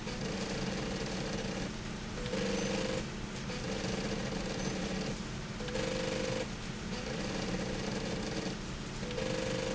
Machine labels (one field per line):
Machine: slide rail